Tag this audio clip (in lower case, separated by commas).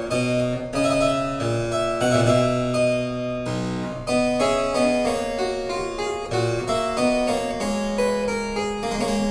music, harpsichord